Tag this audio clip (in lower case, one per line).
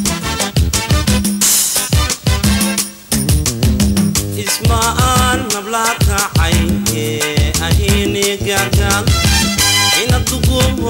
music
music of africa